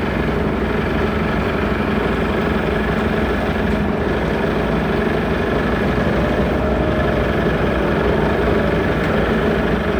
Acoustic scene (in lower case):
street